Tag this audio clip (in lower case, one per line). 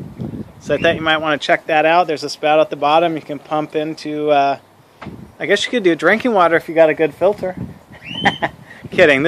speech